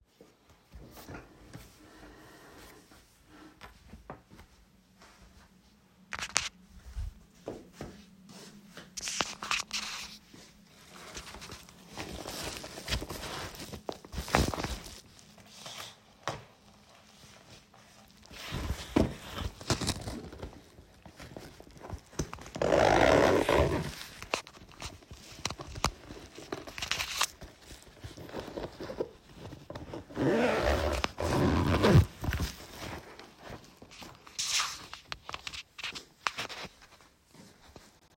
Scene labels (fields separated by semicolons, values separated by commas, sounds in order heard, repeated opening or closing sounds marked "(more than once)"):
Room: living room; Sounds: footsteps, door